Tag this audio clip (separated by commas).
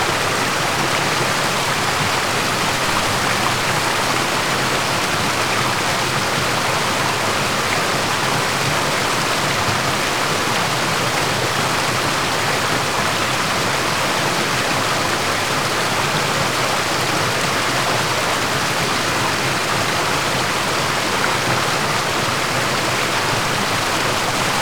Stream, Water